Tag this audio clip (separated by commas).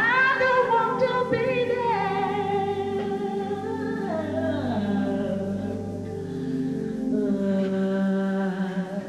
Vocal music, Music